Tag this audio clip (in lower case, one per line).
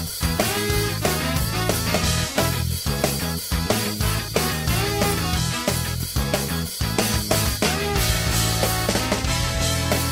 music